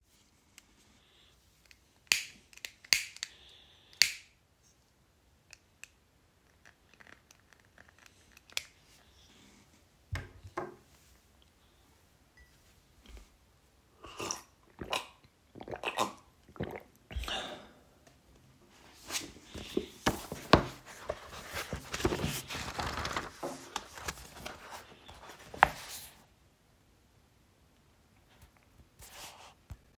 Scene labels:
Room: bedroom; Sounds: cutlery and dishes

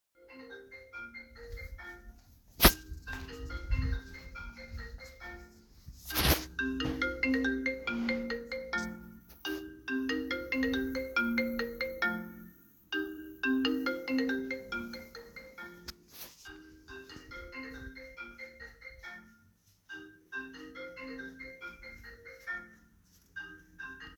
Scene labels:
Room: living room; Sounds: phone ringing

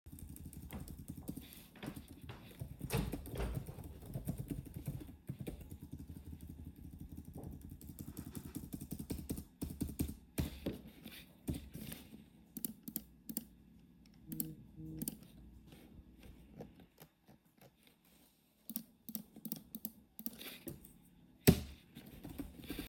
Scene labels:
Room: office; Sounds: keyboard typing

